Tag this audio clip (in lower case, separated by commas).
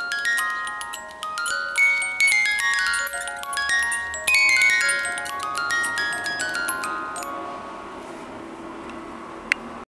music